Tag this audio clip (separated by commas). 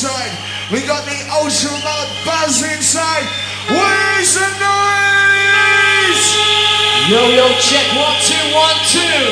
Buzz, Speech